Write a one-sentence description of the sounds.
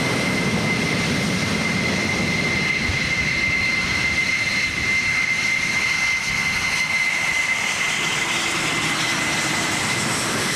An airplane in the process of taking off